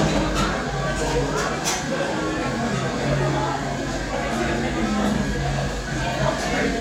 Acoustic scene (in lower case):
crowded indoor space